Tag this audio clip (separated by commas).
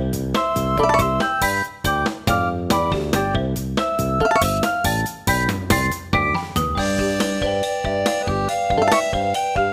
Music